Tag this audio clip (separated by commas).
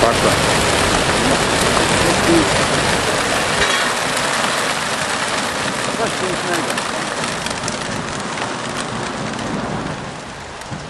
Speech, Pigeon